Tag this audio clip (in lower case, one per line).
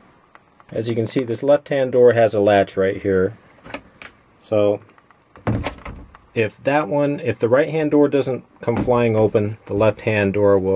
speech
door